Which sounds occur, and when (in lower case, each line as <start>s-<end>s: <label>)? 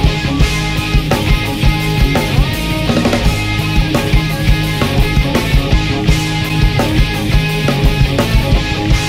0.0s-9.0s: music